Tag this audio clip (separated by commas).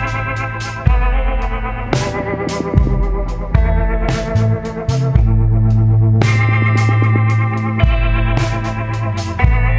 Music